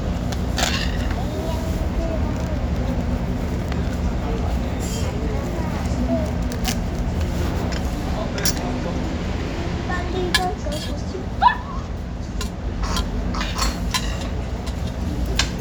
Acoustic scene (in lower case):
restaurant